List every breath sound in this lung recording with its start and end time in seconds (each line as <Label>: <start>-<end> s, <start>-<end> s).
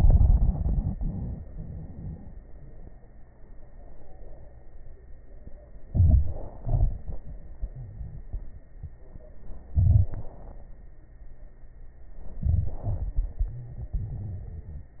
Inhalation: 5.87-6.63 s, 9.70-10.62 s, 12.40-12.89 s
Exhalation: 6.62-8.59 s, 12.96-15.00 s
Crackles: 6.62-8.59 s, 9.70-10.62 s, 12.40-12.89 s, 12.96-15.00 s